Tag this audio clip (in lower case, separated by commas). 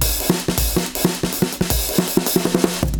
musical instrument, drum kit, music, percussion